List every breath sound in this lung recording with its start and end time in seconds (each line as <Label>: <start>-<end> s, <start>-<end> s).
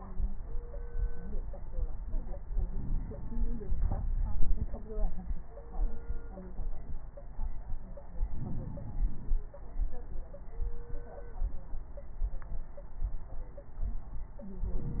Inhalation: 2.66-3.75 s, 8.34-9.38 s, 14.78-15.00 s
Exhalation: 3.77-5.23 s
Crackles: 3.73-5.22 s